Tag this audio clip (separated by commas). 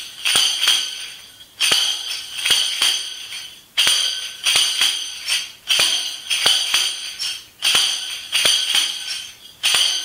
playing tambourine